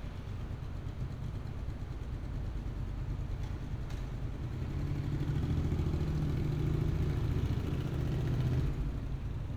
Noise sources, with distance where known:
medium-sounding engine, near

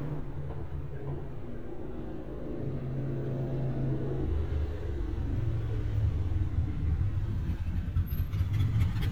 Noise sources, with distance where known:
medium-sounding engine, near

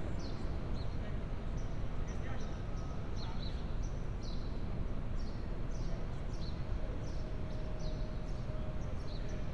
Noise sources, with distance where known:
person or small group talking

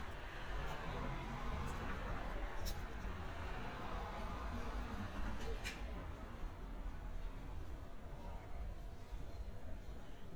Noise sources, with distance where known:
background noise

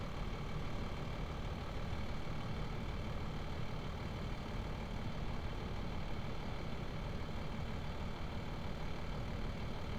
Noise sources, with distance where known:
engine of unclear size

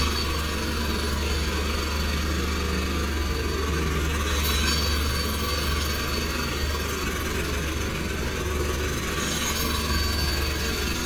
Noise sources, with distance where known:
jackhammer, near

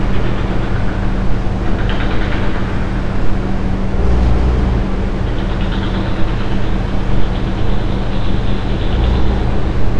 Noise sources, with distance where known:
large-sounding engine, near

